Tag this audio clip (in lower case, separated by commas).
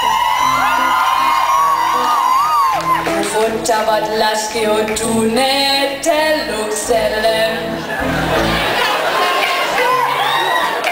music, female singing